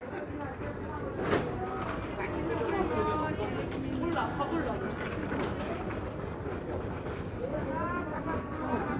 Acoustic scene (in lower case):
crowded indoor space